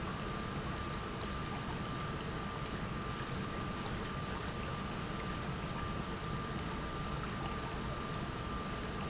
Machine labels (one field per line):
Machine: pump